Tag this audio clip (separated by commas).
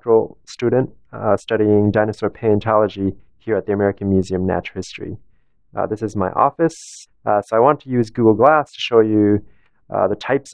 Speech